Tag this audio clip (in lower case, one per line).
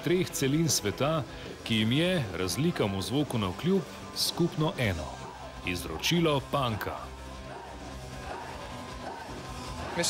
speech
music
punk rock